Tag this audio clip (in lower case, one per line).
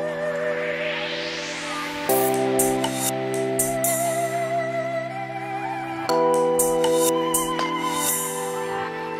dubstep
music